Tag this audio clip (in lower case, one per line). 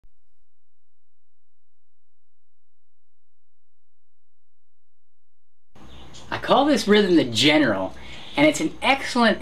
playing harmonica